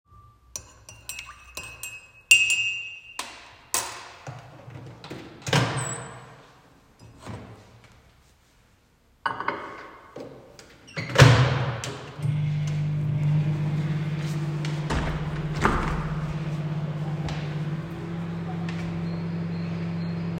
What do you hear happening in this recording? I stirred the milk in my cup and after that I placed the spoon on the countertop. Then I opened the microwave, put the cup inside, closed it and started it. While the microwave was on I opened the window.